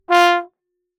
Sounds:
Brass instrument, Music, Musical instrument

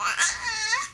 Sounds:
Human voice, Speech

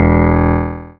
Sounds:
Music, Keyboard (musical), Piano, Musical instrument

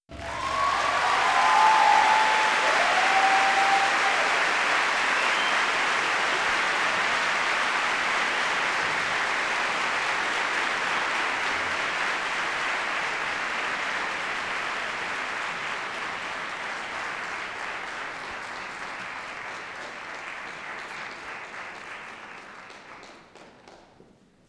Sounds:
Human voice, Applause, Shout, Human group actions, Cheering

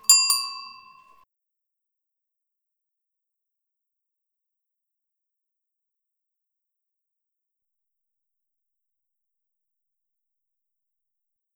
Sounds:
Bicycle bell, Alarm, Vehicle, Bell, Bicycle

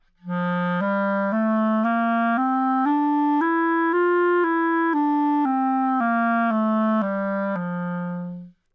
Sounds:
woodwind instrument, Music, Musical instrument

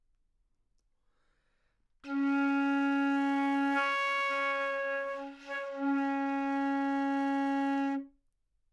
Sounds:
woodwind instrument, Musical instrument, Music

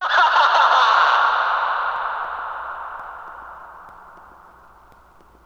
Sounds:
Human voice, Laughter

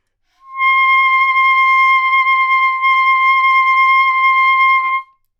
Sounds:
Wind instrument, Musical instrument, Music

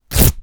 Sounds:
Tearing

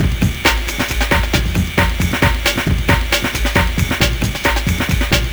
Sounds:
Music, Percussion, Drum kit, Musical instrument

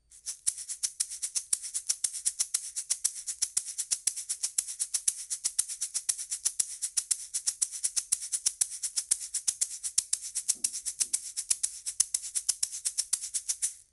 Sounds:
Musical instrument, Rattle (instrument), Percussion, Music

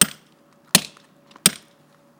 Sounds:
Tools

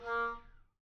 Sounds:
Music, woodwind instrument, Musical instrument

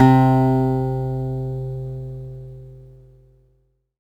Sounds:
Music, Musical instrument, Guitar, Plucked string instrument, Acoustic guitar

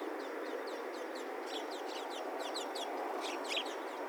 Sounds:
Wild animals, Animal, bird call, Bird, Chirp

